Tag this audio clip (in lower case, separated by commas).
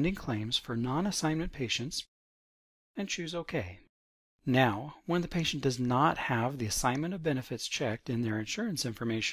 speech